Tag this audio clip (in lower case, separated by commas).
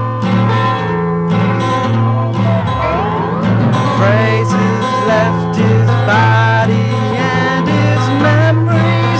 music